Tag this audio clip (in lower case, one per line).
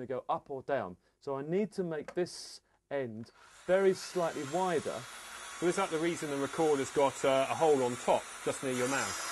speech